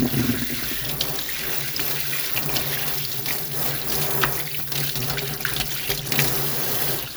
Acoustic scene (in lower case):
kitchen